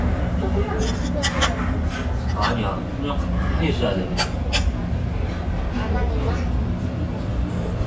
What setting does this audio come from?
restaurant